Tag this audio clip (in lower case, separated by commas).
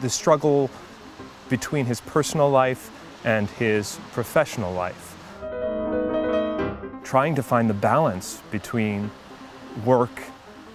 soundtrack music, speech, music